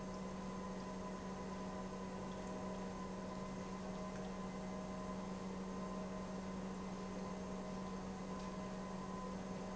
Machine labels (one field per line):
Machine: pump